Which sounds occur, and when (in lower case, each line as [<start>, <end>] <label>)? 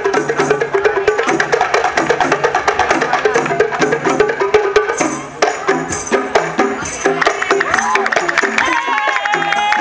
[0.01, 9.80] music
[7.17, 9.80] clapping
[8.56, 9.80] crowd